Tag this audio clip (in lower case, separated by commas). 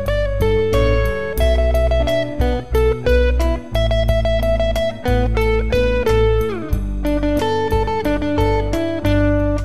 music, steel guitar, plucked string instrument